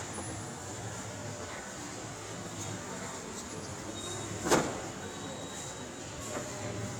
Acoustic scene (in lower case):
subway station